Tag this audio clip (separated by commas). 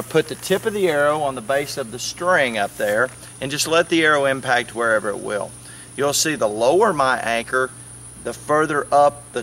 Speech